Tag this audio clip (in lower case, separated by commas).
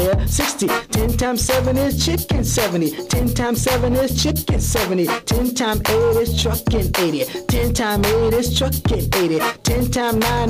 music, rock and roll